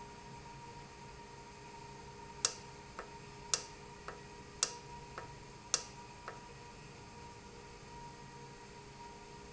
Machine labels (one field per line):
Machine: valve